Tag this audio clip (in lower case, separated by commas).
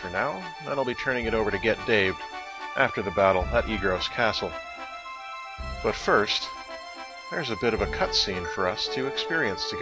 music, speech